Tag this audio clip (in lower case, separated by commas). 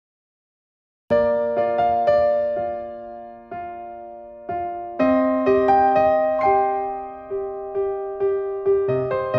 music, electric piano